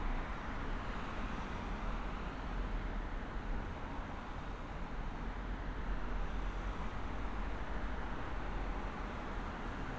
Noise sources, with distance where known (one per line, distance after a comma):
large-sounding engine, far